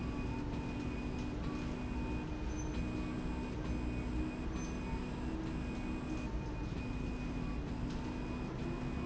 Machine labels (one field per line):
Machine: slide rail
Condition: normal